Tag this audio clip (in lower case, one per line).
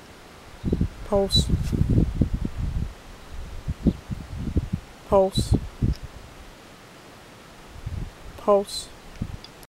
speech